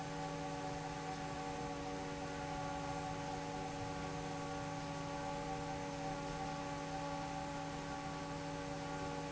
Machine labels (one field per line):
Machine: fan